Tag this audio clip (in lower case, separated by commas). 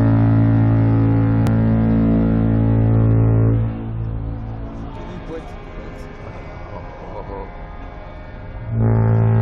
foghorn